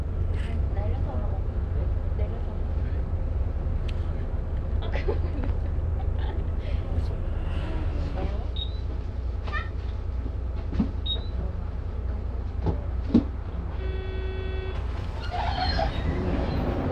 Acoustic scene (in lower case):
bus